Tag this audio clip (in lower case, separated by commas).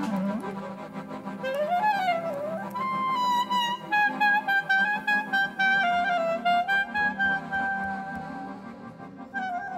accordion, woodwind instrument